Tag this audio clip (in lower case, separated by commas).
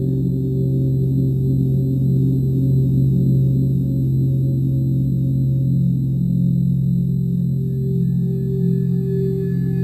singing bowl